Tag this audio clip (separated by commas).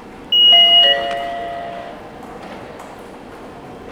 Vehicle, Rail transport, metro